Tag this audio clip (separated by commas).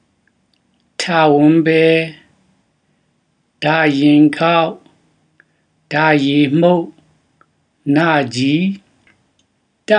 Speech